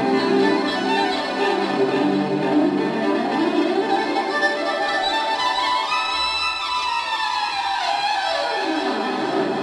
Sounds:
Music

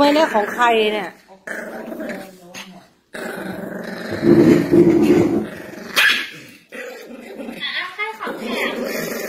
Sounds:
dog growling

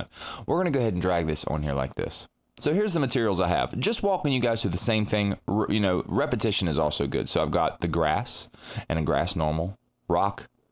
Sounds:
Speech

